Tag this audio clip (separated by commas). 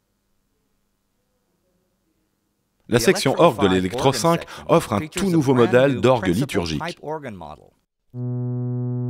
Speech, Musical instrument, Music, Electric piano, Synthesizer, Keyboard (musical), Piano